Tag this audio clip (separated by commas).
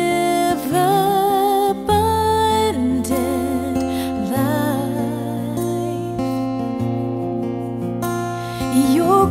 Music